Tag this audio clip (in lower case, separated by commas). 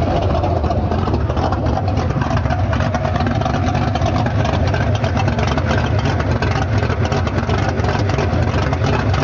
heavy engine (low frequency), vehicle